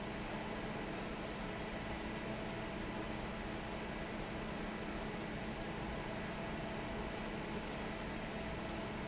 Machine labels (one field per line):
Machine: fan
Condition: normal